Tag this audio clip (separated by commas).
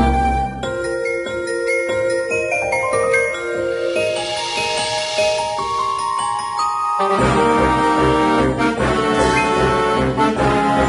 Music